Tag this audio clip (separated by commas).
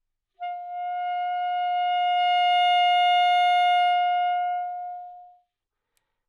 woodwind instrument, Musical instrument, Music